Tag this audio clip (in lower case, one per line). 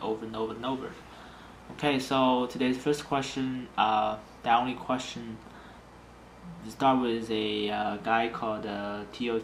speech